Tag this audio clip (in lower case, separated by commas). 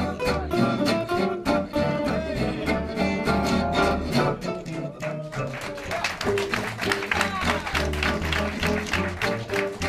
speech, plucked string instrument, music, musical instrument, string section, acoustic guitar, guitar